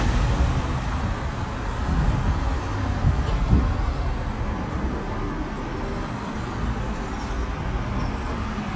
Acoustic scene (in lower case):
street